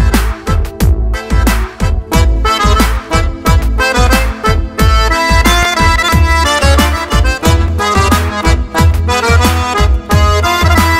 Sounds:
Music

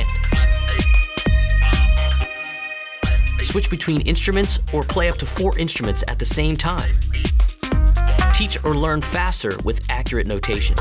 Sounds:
Musical instrument, Acoustic guitar, Plucked string instrument, Speech, Electric guitar, Music, Strum, Guitar

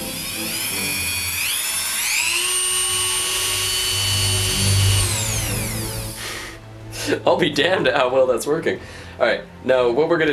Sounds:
Music, inside a small room, Speech

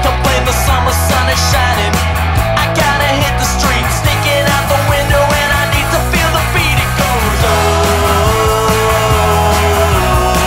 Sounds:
Music, Independent music

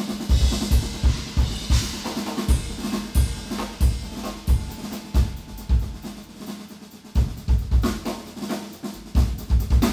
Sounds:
Music

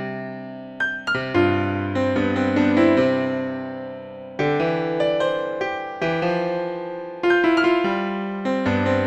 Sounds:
Piano, Keyboard (musical)

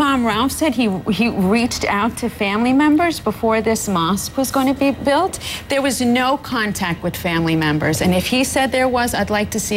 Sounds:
Speech

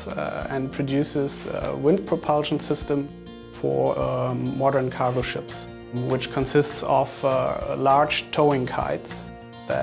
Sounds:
Music, Speech

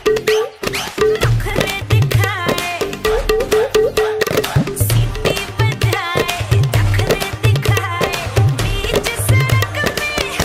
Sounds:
playing tabla

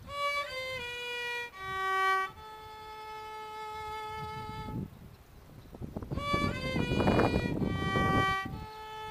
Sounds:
fiddle, Music, Musical instrument

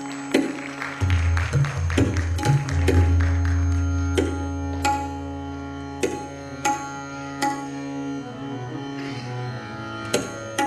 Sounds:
Sitar, Music

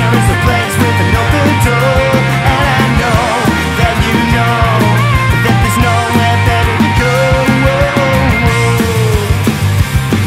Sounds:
Musical instrument, Rock music, Punk rock, Singing, Music

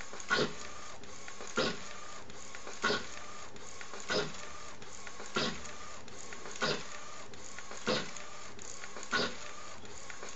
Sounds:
Printer

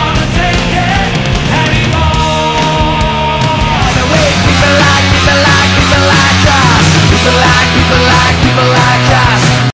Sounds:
Music, Disco

